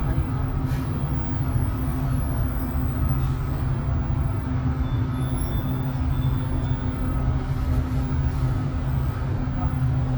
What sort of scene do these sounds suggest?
bus